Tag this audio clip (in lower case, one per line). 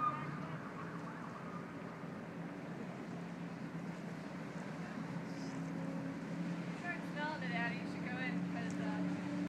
speech